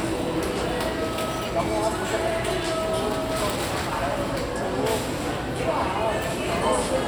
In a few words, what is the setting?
crowded indoor space